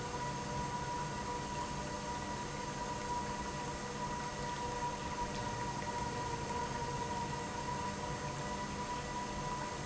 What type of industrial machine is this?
pump